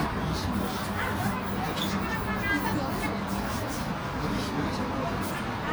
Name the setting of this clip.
park